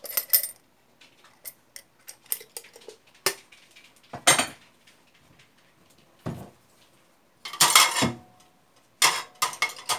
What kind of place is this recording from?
kitchen